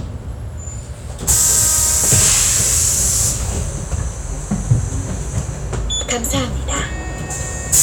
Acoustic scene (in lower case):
bus